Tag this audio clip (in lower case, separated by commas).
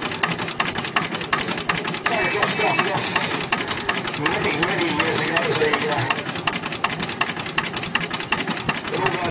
medium engine (mid frequency), speech